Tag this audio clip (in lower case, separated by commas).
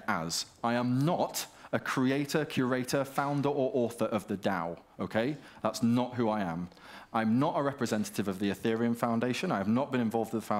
speech